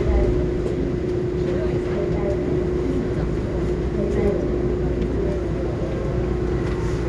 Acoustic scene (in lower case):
subway train